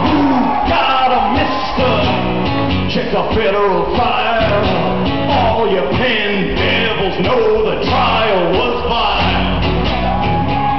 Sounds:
Blues, Music

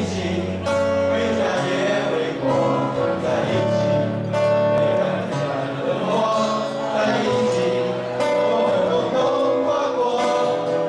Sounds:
Male singing, Music, Choir

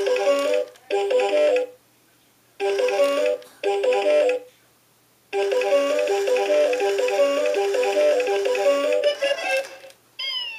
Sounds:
Music

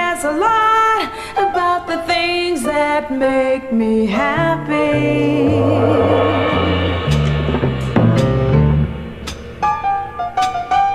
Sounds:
Music

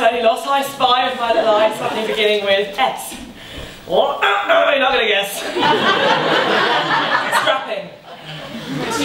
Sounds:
Speech

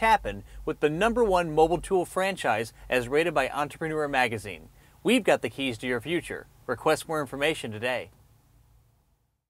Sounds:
Speech

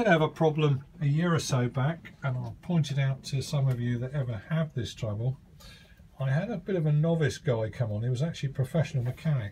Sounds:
Speech

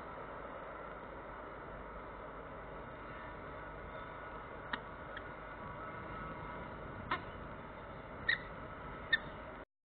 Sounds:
Animal, Bird

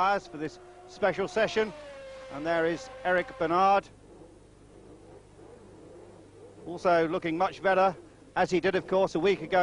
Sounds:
Speech, Car passing by, Car, Vehicle

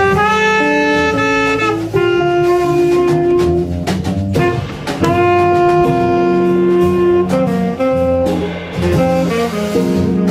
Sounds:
Guitar, Musical instrument, Saxophone, Double bass, Drum kit, Bowed string instrument, Music, Plucked string instrument, Jazz

